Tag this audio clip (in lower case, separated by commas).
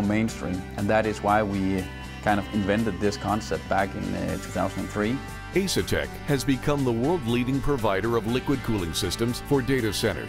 music, speech